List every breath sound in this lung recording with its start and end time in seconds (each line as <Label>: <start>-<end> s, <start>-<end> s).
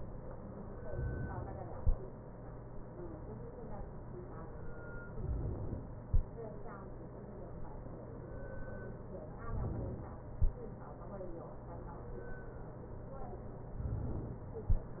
Inhalation: 0.75-1.76 s, 5.09-6.04 s, 9.43-10.38 s